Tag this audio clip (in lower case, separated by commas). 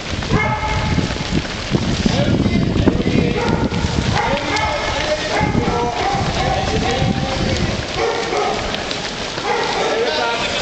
run, speech, outside, urban or man-made